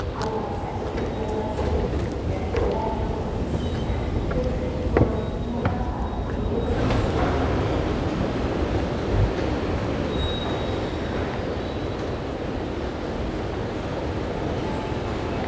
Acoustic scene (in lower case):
subway station